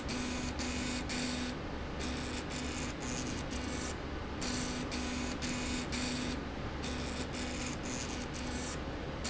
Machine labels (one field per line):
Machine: slide rail